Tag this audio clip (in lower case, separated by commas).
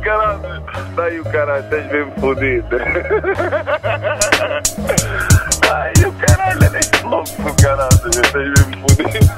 speech, music